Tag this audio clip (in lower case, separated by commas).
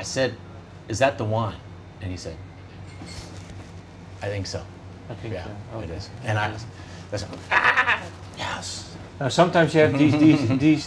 speech